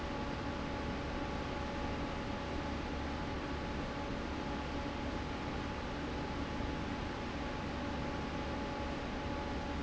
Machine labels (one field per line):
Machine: fan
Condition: normal